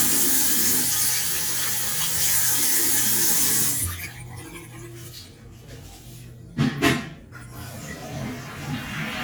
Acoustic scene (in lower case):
restroom